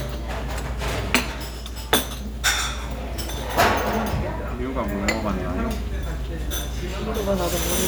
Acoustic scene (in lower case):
restaurant